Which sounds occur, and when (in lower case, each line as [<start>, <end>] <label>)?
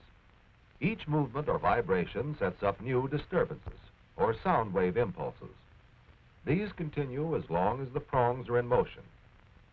[0.00, 0.47] man speaking
[0.00, 9.72] music
[0.00, 9.72] television
[0.62, 2.22] man speaking
[4.89, 8.26] man speaking